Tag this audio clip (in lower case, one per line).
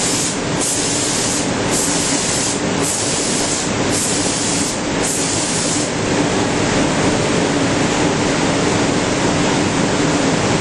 spray